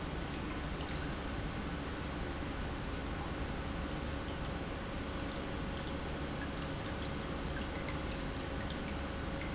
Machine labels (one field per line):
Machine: pump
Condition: normal